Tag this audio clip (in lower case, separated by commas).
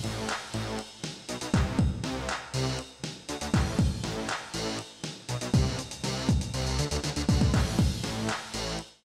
music